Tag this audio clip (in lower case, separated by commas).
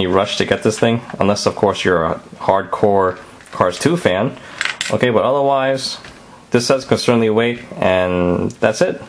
speech